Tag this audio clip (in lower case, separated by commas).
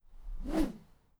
swoosh